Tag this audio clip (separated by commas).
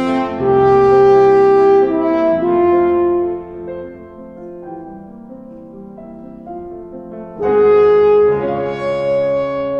Music, Piano